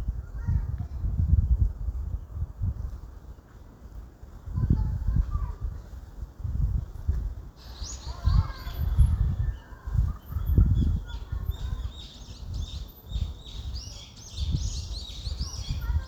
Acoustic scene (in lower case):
park